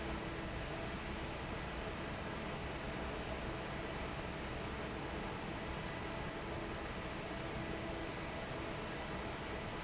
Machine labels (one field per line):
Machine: fan